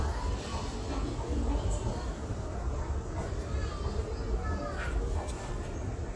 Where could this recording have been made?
in a crowded indoor space